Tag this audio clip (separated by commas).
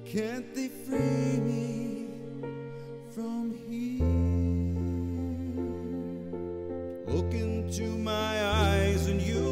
Music